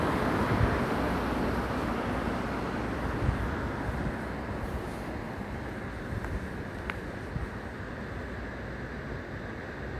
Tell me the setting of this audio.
residential area